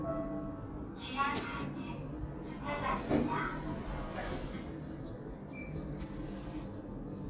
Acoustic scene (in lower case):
elevator